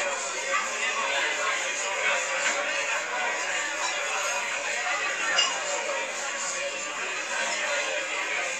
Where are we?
in a crowded indoor space